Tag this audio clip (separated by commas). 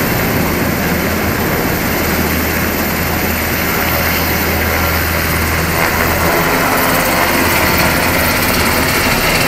Helicopter